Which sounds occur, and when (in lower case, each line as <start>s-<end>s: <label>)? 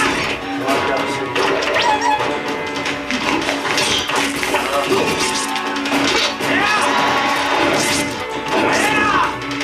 0.0s-0.4s: sound effect
0.0s-9.6s: music
0.0s-9.6s: video game sound
0.6s-1.2s: sound effect
0.7s-1.3s: male speech
1.3s-2.9s: sound effect
3.1s-8.1s: sound effect
3.1s-3.5s: human voice
4.6s-5.0s: human voice
6.5s-6.9s: shout
8.4s-9.6s: sound effect
8.7s-9.3s: shout